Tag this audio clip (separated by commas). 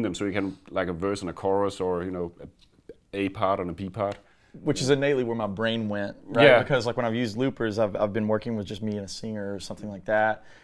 Speech